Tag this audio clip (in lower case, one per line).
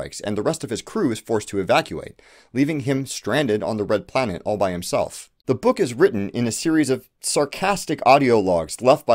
speech